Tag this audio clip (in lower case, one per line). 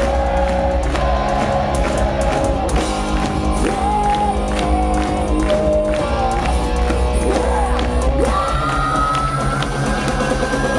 music